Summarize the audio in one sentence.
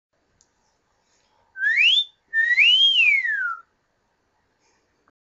A person whistles loudly and sharply